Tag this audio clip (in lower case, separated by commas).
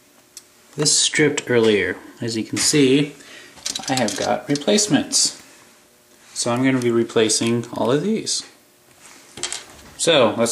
speech, inside a small room